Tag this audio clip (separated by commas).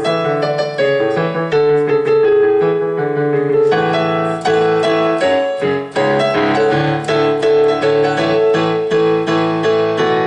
Music